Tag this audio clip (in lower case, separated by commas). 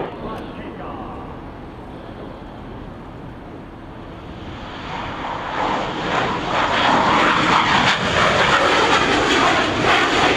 speech